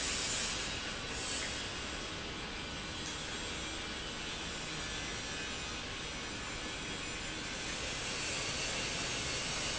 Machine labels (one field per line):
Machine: pump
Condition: normal